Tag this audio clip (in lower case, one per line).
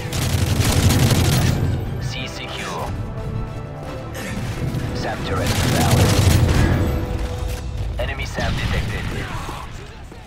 speech
music